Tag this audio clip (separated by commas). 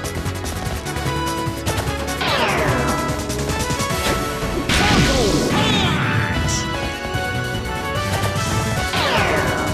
thwack